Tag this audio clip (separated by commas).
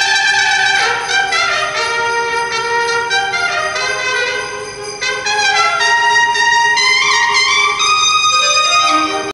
tinkle